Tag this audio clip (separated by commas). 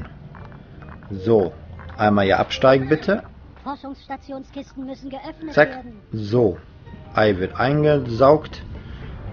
Music, Speech